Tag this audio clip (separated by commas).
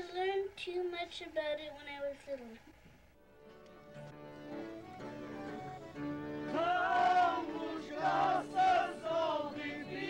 Speech, Music